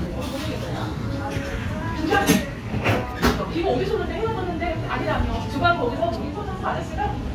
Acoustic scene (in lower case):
cafe